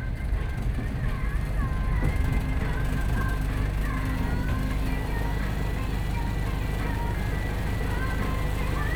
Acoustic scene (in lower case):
bus